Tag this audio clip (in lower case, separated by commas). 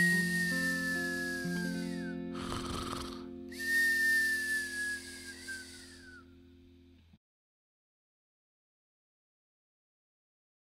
music